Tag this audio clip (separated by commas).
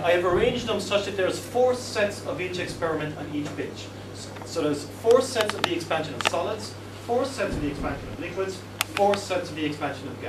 Speech